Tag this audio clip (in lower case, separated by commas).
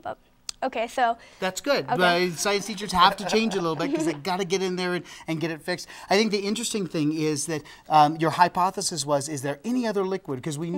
speech